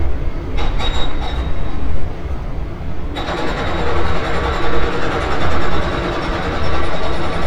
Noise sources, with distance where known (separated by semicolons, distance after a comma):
hoe ram, near